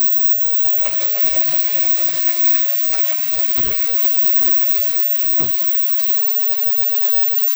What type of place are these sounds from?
kitchen